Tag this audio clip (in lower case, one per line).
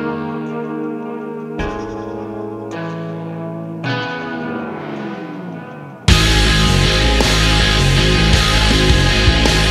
music